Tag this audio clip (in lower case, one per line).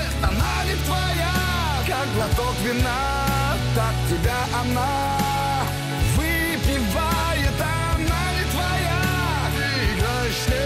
progressive rock
music